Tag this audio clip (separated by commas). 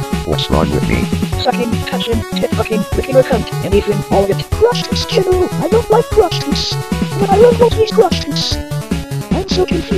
Cacophony